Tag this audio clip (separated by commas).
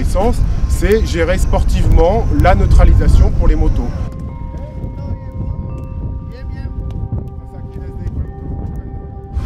Speech